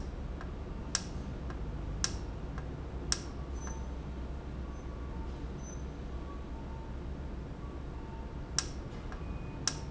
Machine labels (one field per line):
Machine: valve